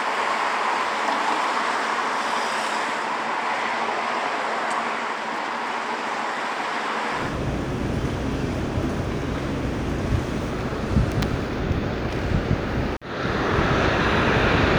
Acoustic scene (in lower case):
street